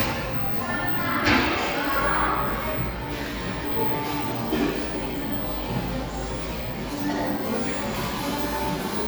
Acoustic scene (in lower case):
cafe